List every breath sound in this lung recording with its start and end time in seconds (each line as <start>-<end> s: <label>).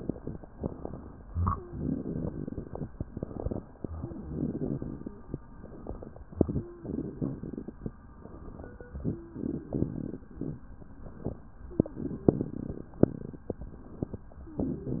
0.49-1.22 s: inhalation
1.76-2.89 s: exhalation
3.06-3.62 s: inhalation
4.04-5.16 s: exhalation
5.60-6.17 s: inhalation
6.81-7.76 s: exhalation
8.22-8.92 s: inhalation
9.34-10.29 s: exhalation
11.92-12.87 s: exhalation